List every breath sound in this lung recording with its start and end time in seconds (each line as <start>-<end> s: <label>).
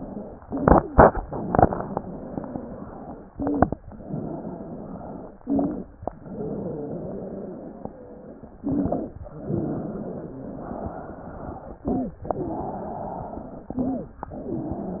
1.80-3.30 s: exhalation
1.80-3.30 s: wheeze
1.80-3.30 s: wheeze
3.32-3.80 s: inhalation
3.32-3.80 s: wheeze
3.87-5.37 s: exhalation
3.87-5.37 s: wheeze
5.41-5.92 s: inhalation
5.41-5.92 s: wheeze
6.13-8.60 s: exhalation
6.13-8.60 s: wheeze
8.65-9.13 s: inhalation
8.65-9.13 s: wheeze
9.34-11.80 s: exhalation
9.34-11.80 s: wheeze
11.84-12.20 s: inhalation
11.84-12.20 s: wheeze
12.29-13.76 s: exhalation
12.29-13.76 s: wheeze
13.76-14.18 s: inhalation